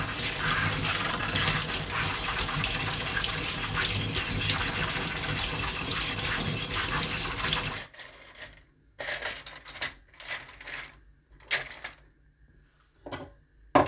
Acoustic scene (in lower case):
kitchen